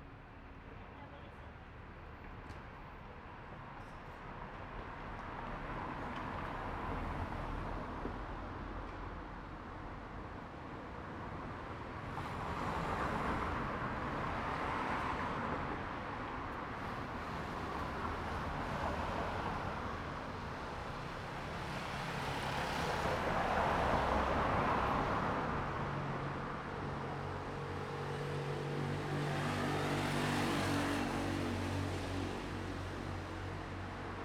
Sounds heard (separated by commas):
car engine accelerating, car wheels rolling, car, motorcycle, motorcycle engine accelerating, people talking